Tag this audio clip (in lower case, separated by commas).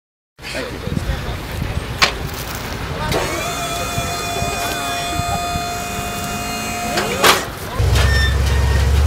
vehicle, speech